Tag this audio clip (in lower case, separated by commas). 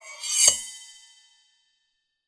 cutlery, home sounds